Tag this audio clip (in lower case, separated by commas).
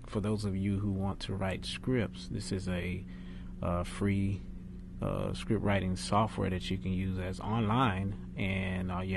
speech